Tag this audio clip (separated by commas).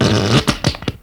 Fart